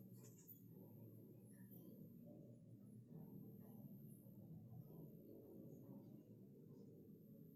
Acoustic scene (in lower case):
elevator